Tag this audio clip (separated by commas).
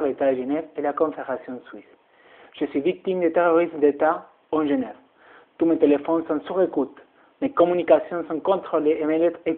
Speech